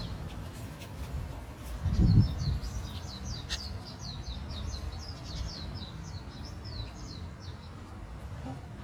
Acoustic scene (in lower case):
park